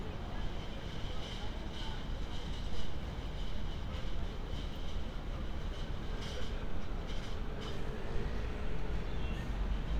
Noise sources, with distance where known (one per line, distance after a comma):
small-sounding engine